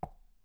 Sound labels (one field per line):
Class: object falling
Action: being thrown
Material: plastic